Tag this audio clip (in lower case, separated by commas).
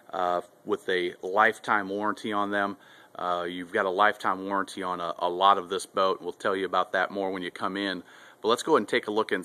speech